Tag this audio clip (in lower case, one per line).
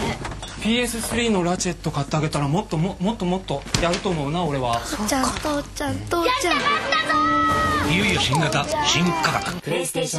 speech
music